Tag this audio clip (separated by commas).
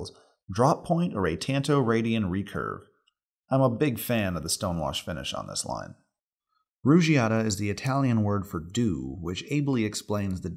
Speech